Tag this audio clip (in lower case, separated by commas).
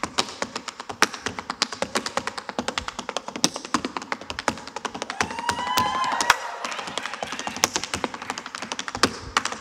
tap dancing